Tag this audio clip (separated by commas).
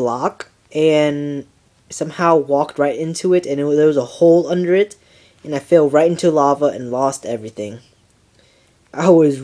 Speech